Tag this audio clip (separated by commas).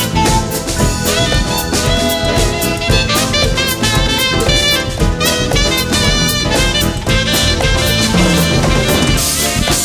Saxophone, playing saxophone, Brass instrument